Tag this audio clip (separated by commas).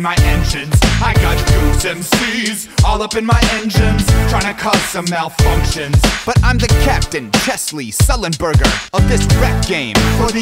Music